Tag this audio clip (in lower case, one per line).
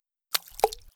splatter
liquid